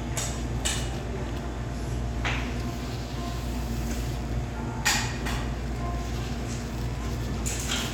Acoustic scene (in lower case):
cafe